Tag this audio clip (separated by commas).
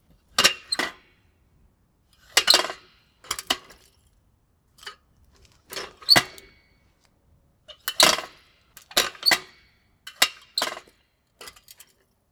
Vehicle, Bicycle